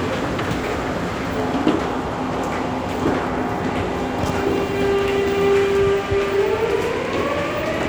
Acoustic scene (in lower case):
subway station